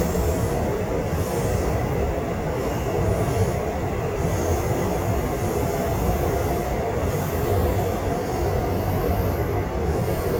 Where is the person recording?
on a subway train